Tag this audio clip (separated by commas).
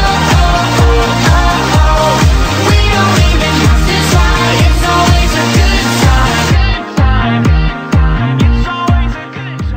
Music